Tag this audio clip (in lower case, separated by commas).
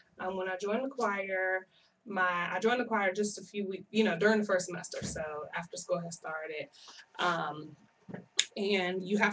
speech